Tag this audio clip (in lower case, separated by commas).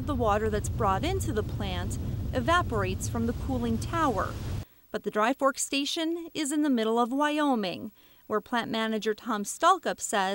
speech